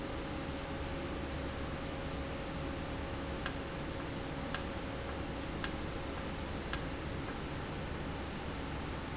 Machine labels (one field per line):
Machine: valve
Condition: normal